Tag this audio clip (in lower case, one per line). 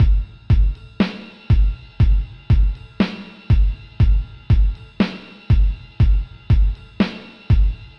drum kit
musical instrument
percussion
drum
music